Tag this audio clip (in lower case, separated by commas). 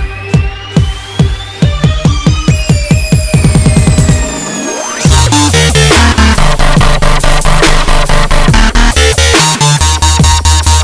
dubstep, electronic music, music